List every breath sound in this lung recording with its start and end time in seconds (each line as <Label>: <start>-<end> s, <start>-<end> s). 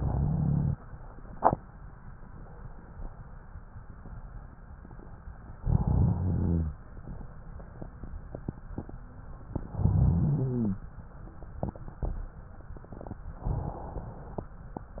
Inhalation: 0.00-0.71 s, 5.58-6.71 s, 9.68-10.81 s, 13.40-14.53 s